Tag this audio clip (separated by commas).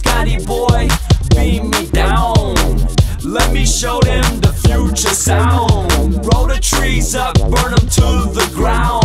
Rhythm and blues, Music